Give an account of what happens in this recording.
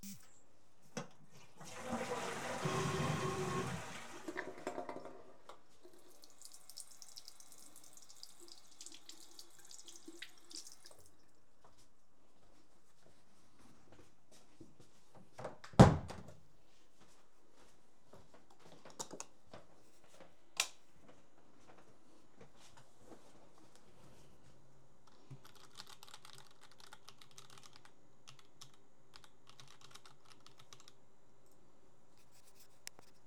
After flushing the toilet, I washed my hands and closed the bathroom door. After that I turned off the lights for the bathroom, returned to my bedroom and typed on the keyboard.